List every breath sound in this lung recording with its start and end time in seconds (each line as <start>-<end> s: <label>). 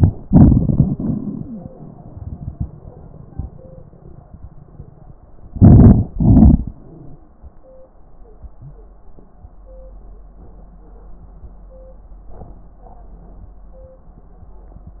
0.22-1.68 s: exhalation
1.39-1.65 s: wheeze
5.55-6.12 s: inhalation
6.13-6.77 s: exhalation
6.71-7.34 s: wheeze